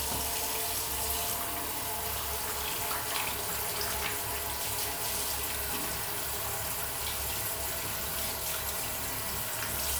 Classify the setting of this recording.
restroom